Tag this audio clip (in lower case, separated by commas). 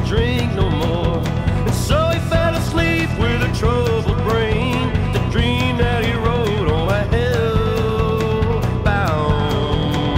music